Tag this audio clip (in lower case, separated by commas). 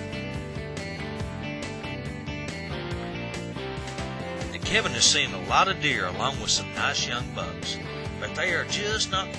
speech, music